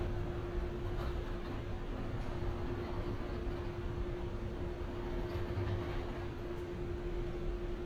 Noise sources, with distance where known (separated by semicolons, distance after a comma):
large-sounding engine